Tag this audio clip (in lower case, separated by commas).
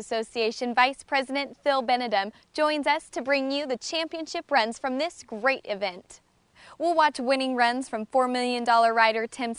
speech